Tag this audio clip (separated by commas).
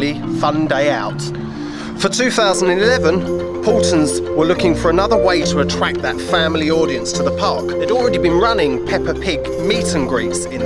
Music, Speech